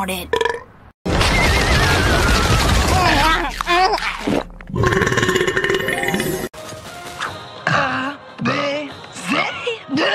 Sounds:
people burping

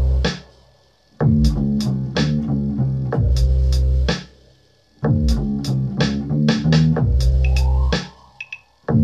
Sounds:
music

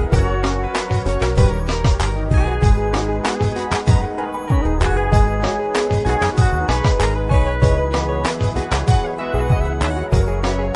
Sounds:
afrobeat
music

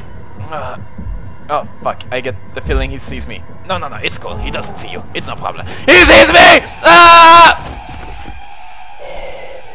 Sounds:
speech
music

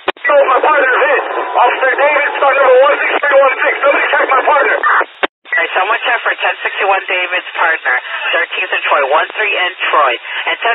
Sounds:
police radio chatter

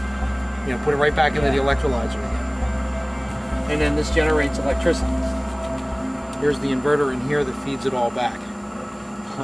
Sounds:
outside, rural or natural
speech

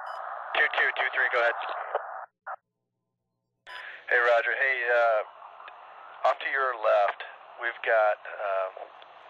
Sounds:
police radio chatter

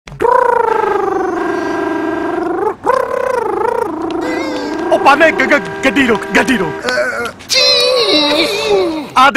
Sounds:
speech
inside a large room or hall

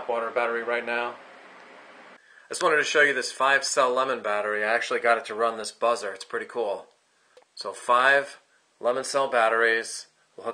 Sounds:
speech

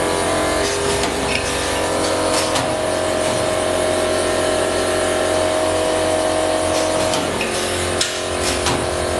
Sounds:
lathe spinning

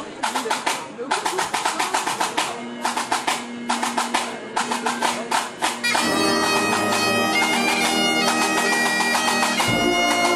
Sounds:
bagpipes
music
speech

